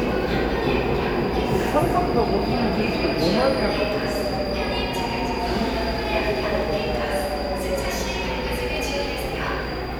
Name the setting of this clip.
subway station